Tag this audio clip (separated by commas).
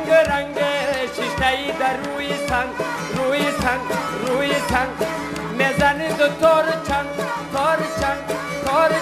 Music